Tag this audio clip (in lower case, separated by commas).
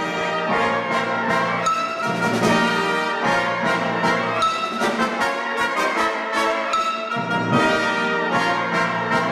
music, orchestra, classical music